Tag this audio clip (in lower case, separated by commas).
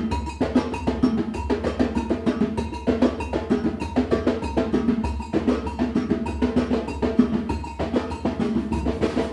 drum, percussion